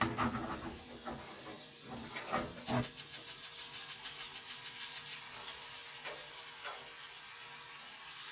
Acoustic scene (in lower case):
kitchen